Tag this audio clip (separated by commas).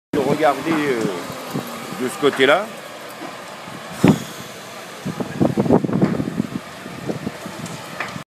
Speech